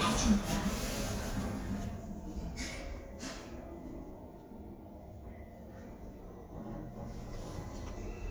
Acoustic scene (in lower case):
elevator